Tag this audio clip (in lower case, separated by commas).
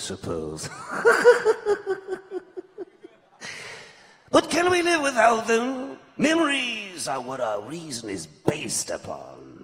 speech, narration